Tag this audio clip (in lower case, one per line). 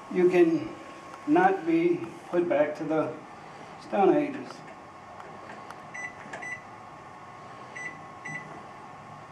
speech